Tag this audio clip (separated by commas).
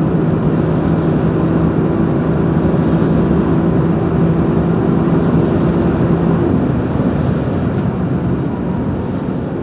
outside, urban or man-made